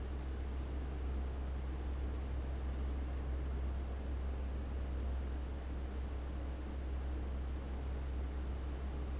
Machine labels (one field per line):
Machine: fan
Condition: abnormal